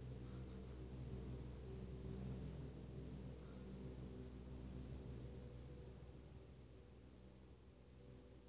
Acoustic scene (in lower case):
elevator